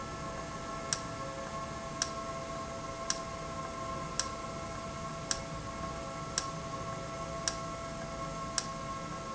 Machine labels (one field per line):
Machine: valve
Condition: normal